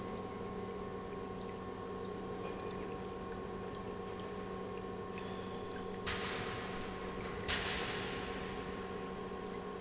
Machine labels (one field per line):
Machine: pump